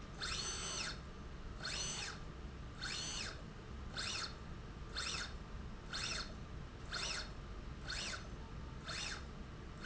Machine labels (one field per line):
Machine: slide rail